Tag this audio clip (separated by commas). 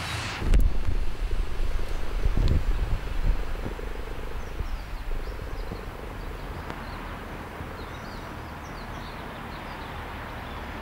Animal, Wind